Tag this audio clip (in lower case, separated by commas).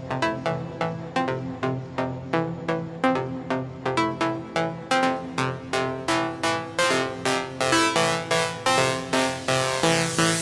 music